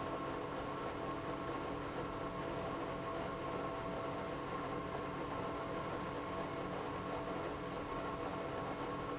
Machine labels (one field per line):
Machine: pump